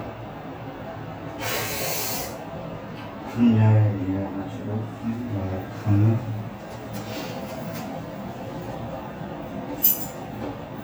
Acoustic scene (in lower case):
elevator